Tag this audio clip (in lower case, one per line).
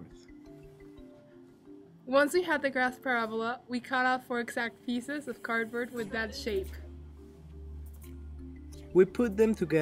music
speech